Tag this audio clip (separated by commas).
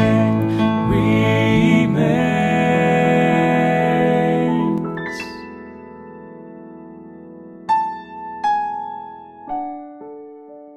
Keyboard (musical), Musical instrument, Music, Singing, Electric piano, Piano